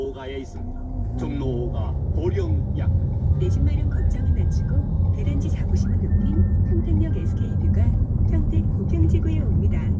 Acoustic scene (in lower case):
car